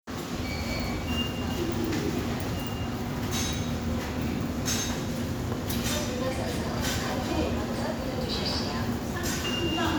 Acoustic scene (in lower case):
subway station